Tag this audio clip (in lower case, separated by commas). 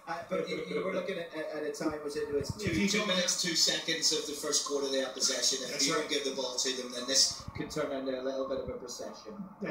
speech